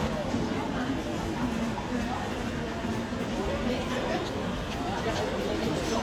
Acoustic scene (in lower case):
crowded indoor space